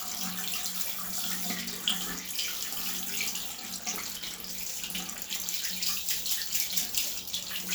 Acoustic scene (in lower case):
restroom